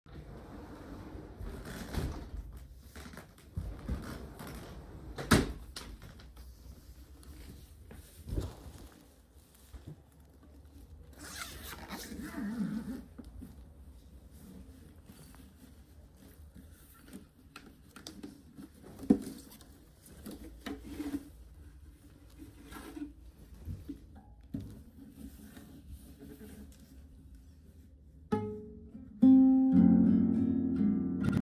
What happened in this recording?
I opend the wardrobe and setup the guitar to play then the mobile phone started to ring and fell from the chair.